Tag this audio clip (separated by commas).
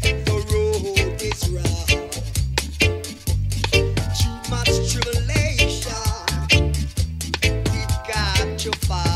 Music